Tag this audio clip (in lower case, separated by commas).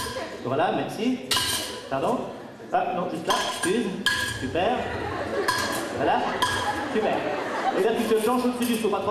speech